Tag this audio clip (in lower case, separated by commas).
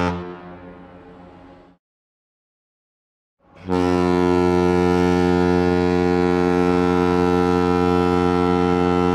foghorn